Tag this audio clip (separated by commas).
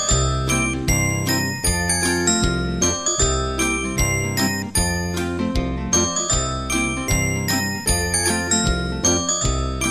Music